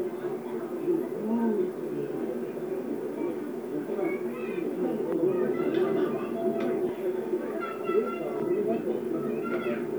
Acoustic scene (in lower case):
park